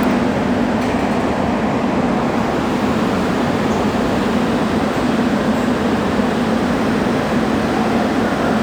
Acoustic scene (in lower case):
subway station